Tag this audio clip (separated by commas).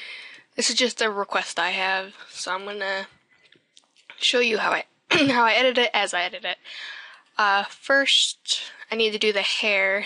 Narration